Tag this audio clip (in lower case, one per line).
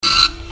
printer
mechanisms